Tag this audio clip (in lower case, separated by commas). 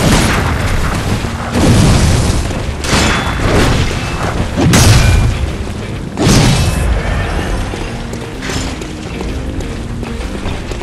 music, boom